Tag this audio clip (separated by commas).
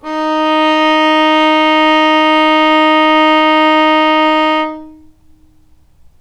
Music, Bowed string instrument, Musical instrument